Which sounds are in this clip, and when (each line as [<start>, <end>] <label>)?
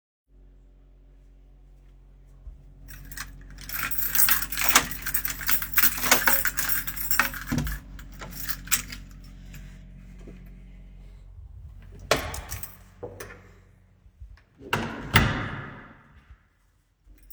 [2.82, 9.14] keys
[4.55, 4.93] door
[6.02, 6.58] door
[7.33, 8.41] door
[12.07, 13.49] door
[12.42, 12.79] keys
[14.58, 16.00] door